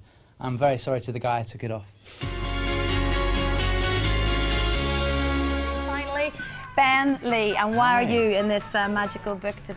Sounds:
Musical instrument, Speech, Music

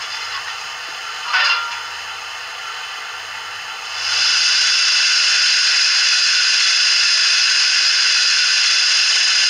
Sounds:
Hiss

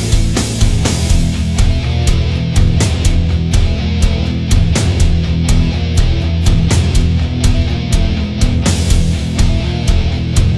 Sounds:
Percussion, Drum, Bass drum, Drum kit, Rimshot, Snare drum

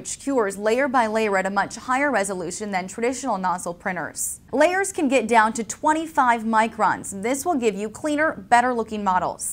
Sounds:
Speech

